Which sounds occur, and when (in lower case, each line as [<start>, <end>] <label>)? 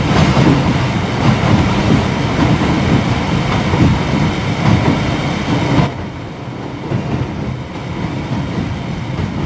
[0.00, 9.45] underground
[0.00, 9.45] video game sound
[0.00, 9.45] wind